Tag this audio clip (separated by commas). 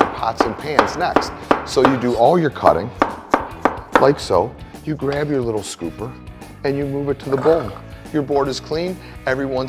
Music, Speech